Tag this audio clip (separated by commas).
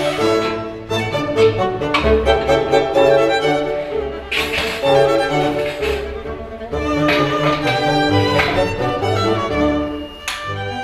Music, fiddle